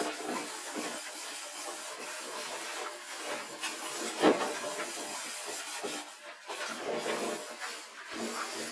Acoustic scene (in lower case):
kitchen